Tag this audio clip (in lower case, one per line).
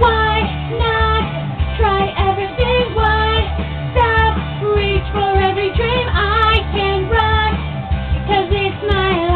music
female singing